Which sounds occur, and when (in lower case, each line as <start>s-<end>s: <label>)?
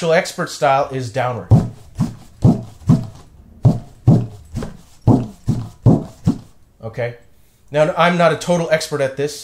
0.0s-1.8s: male speech
0.0s-9.4s: background noise
1.9s-2.2s: music
2.4s-3.2s: music
3.5s-4.8s: music
5.1s-6.5s: music
6.8s-7.1s: male speech
7.6s-9.4s: male speech